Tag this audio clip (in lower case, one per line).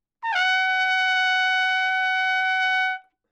music
musical instrument
brass instrument
trumpet